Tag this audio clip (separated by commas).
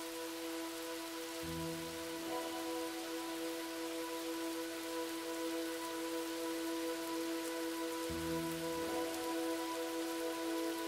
Music, Rain on surface